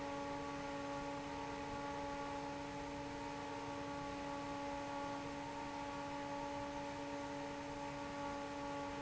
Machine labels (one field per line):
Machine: fan